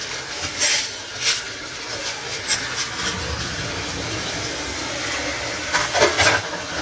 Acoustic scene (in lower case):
kitchen